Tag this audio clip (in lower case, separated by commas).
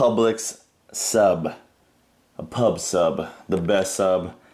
speech